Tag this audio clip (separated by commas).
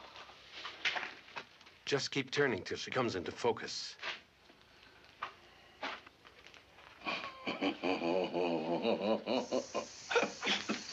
Male speech, Speech